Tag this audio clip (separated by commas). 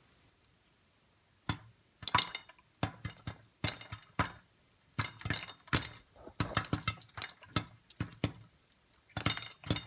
popping popcorn